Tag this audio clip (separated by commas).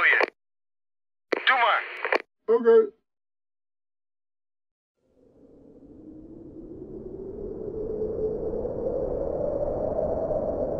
Speech